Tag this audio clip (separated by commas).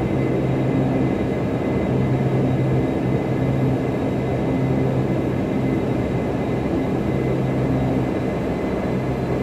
Heavy engine (low frequency)